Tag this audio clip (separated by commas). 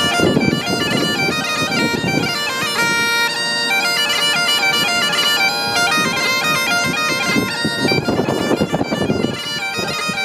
playing bagpipes